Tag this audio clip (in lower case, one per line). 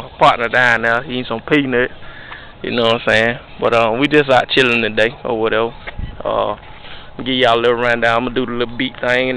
speech